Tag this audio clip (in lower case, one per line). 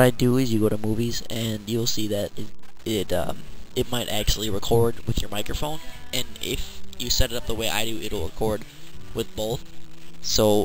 music
speech